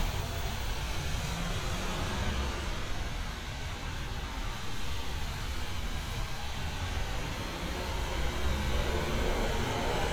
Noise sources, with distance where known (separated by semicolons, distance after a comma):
engine of unclear size, near